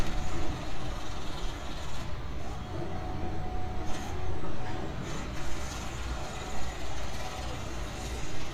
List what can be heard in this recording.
unidentified impact machinery